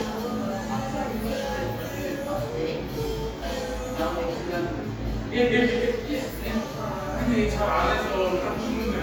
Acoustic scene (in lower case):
cafe